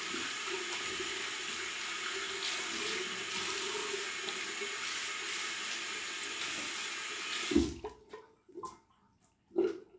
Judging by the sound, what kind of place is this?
restroom